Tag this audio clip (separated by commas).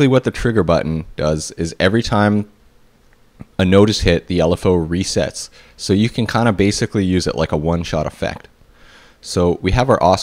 Speech